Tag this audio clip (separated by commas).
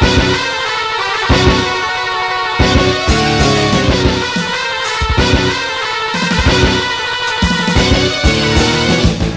Video game music, Soundtrack music, Music